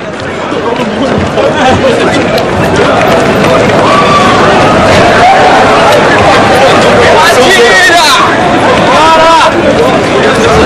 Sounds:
speech

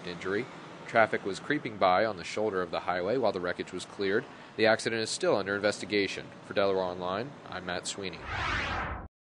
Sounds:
speech

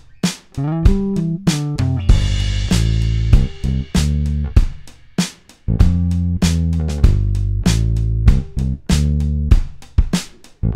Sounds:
music

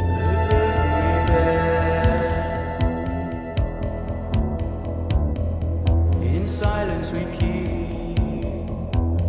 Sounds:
music, scary music

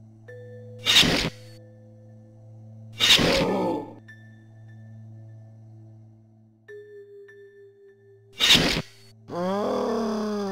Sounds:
outside, urban or man-made, music

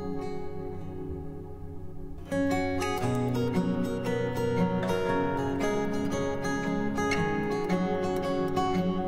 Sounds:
playing acoustic guitar

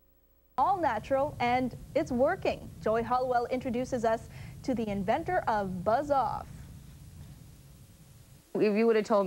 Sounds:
speech

